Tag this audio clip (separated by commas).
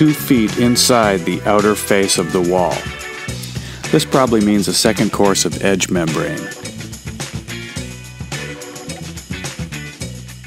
Music, Speech